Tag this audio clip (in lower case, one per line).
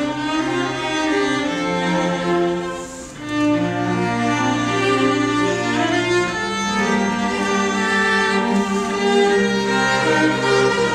string section